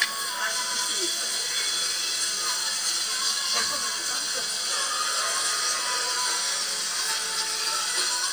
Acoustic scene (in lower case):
restaurant